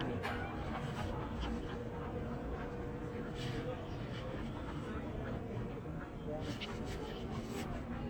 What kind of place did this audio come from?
crowded indoor space